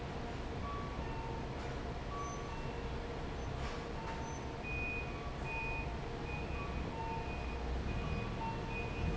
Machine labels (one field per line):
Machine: fan